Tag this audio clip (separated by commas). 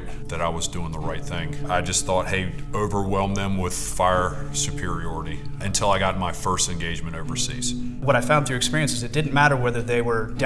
Music, Speech